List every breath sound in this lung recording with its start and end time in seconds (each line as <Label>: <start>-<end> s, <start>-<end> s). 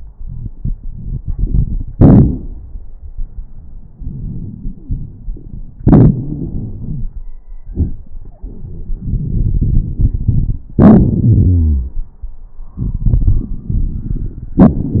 Inhalation: 0.14-1.85 s, 3.94-5.78 s, 9.04-10.62 s, 12.84-14.55 s
Exhalation: 1.94-2.62 s, 5.79-7.26 s, 10.76-12.00 s, 14.61-15.00 s
Wheeze: 5.79-7.07 s, 10.76-12.00 s
Crackles: 0.14-1.85 s, 1.94-2.62 s, 3.94-5.78 s, 9.04-10.62 s, 12.84-14.55 s, 14.61-15.00 s